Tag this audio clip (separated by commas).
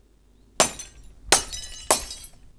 Glass